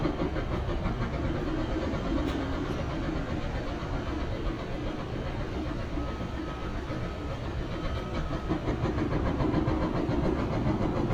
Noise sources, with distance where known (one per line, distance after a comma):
hoe ram